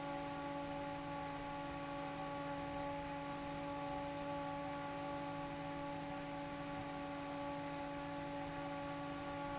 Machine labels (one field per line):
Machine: fan